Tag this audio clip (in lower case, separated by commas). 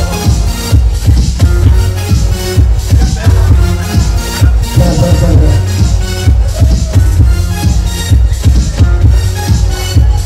music, speech